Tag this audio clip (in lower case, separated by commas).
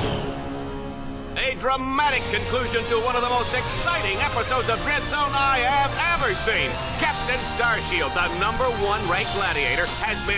music, speech